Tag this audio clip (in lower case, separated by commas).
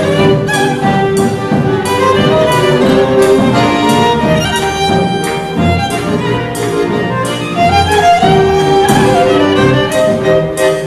music, fiddle, musical instrument